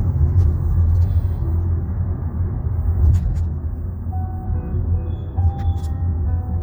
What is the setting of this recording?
car